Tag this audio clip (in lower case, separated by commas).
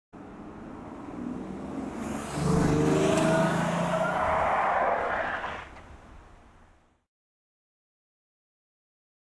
car passing by